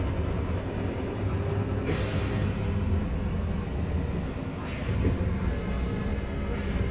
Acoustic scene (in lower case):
bus